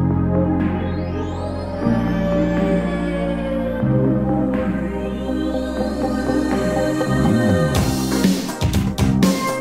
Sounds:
music

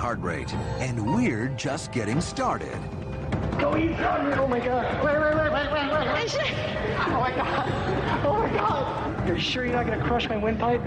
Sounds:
speech, music, inside a large room or hall

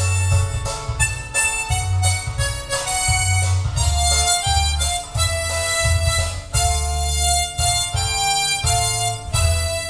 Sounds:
music, harmonica

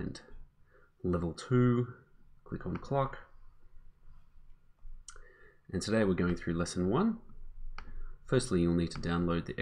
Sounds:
speech, tick

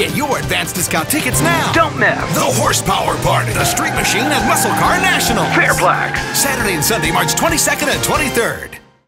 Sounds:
music, speech, vehicle, motor vehicle (road)

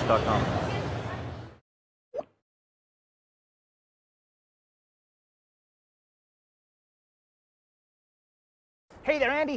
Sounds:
inside a large room or hall, speech, silence

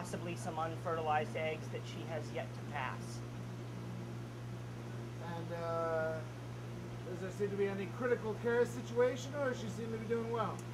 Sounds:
inside a large room or hall, speech

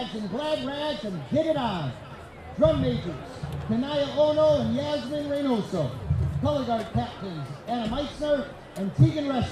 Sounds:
speech

